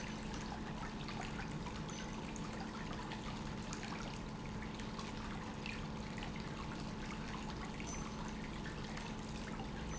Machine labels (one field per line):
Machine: pump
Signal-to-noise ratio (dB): 0 dB